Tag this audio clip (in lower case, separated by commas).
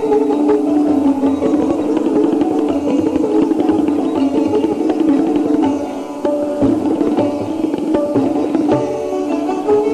plucked string instrument, tabla, music, musical instrument, bowed string instrument, sitar